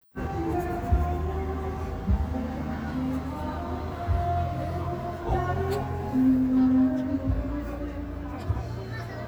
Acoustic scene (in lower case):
park